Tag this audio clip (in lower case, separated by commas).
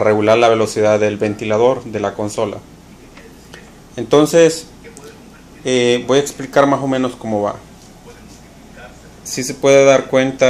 speech